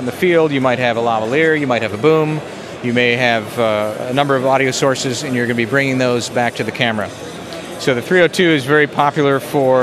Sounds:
Speech, Crowd

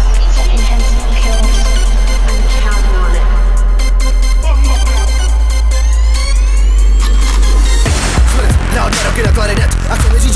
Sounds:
Music

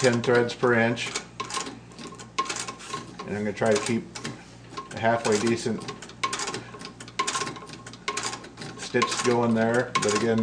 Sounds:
Speech

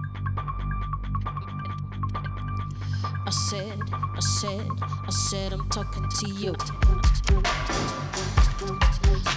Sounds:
Music, Music of Asia

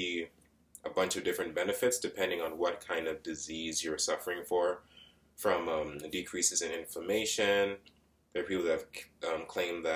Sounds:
Speech

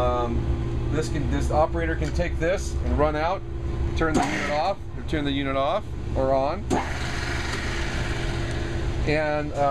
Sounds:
Speech

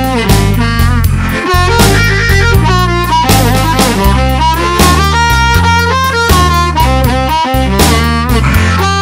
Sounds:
playing harmonica

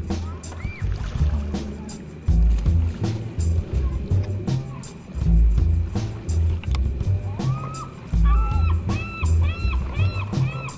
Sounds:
Music, Boat, Vehicle

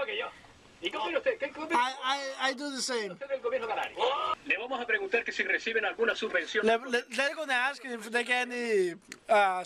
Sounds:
Speech

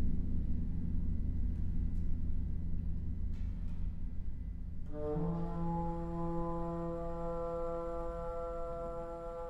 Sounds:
Music, Flute

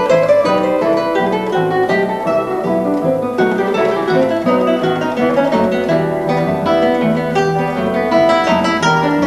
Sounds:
Acoustic guitar, Guitar, Musical instrument, Music, Plucked string instrument

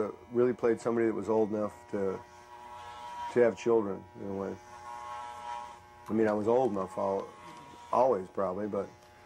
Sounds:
inside a small room, Electric shaver, Speech

